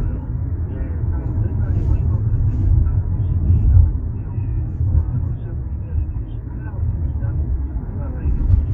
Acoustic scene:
car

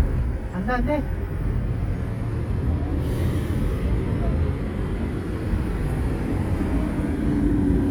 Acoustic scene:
street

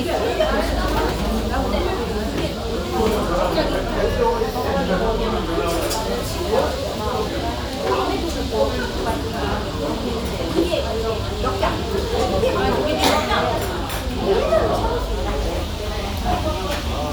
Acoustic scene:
restaurant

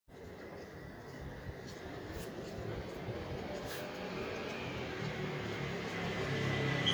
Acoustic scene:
residential area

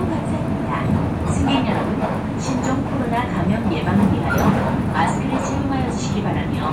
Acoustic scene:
bus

